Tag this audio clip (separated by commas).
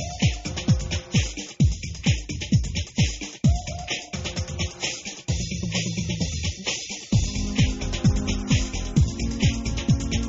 Music